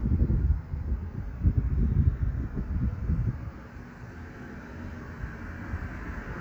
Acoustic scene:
street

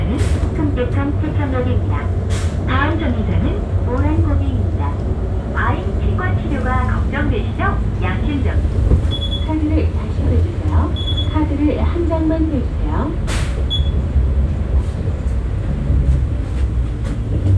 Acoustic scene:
bus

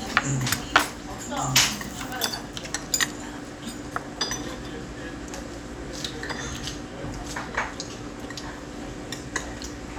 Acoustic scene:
restaurant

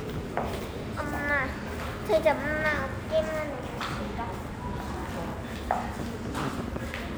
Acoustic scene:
subway station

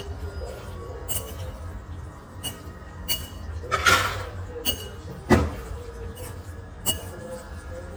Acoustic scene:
restaurant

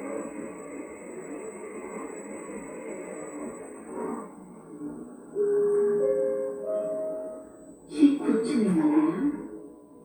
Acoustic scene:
elevator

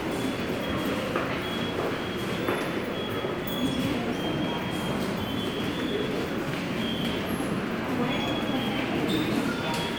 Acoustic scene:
subway station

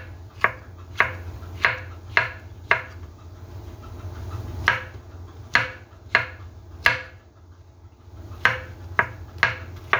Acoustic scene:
kitchen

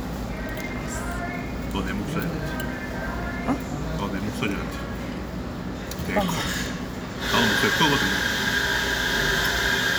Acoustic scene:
cafe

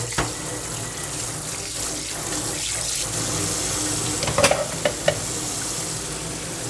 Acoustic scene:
kitchen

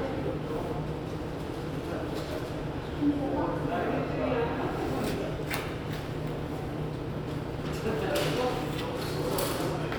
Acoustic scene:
subway station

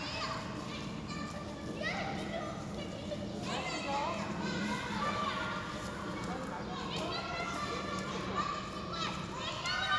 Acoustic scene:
park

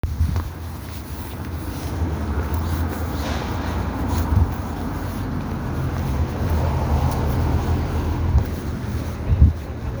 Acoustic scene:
street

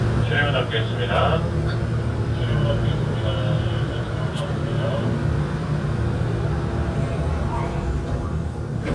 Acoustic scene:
subway train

